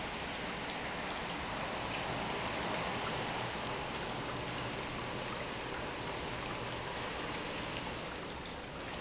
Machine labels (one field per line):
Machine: pump